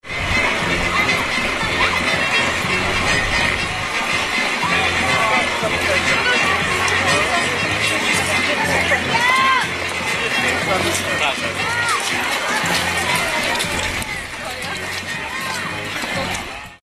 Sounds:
Human group actions, Crowd

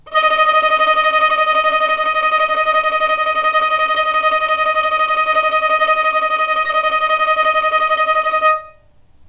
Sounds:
Bowed string instrument, Musical instrument, Music

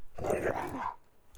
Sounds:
pets, Dog, Animal

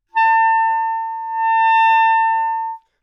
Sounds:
woodwind instrument, Music, Musical instrument

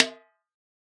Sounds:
Percussion, Snare drum, Drum, Music, Musical instrument

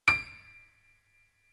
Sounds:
Musical instrument, Music, Piano, Keyboard (musical)

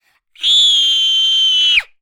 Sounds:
Screaming, Human voice

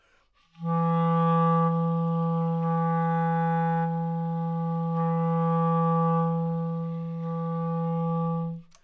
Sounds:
Music, Musical instrument, Wind instrument

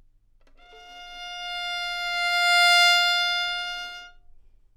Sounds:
Musical instrument, Bowed string instrument, Music

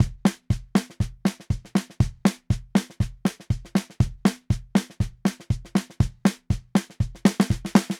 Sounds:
Musical instrument, Drum kit, Music, Percussion, Snare drum, Bass drum, Drum

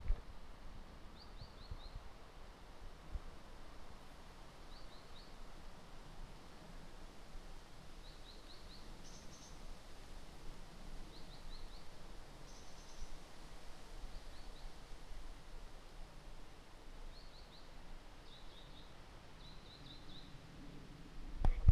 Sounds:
Water

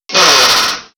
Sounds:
Tools, Drill, Power tool

